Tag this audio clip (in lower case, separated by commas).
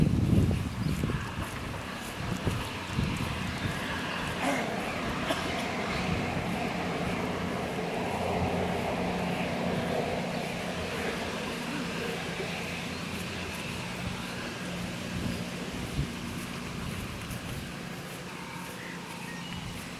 rail transport, train, vehicle